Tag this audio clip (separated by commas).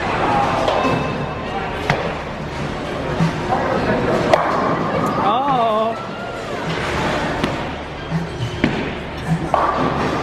striking bowling